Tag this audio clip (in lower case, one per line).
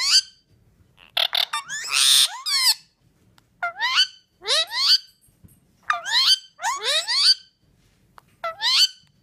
parrot talking